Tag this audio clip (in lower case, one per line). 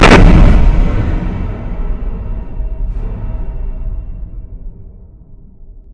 explosion